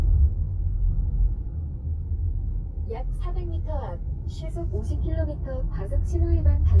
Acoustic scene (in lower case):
car